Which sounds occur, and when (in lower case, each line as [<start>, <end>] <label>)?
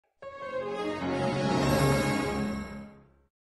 [0.00, 3.27] music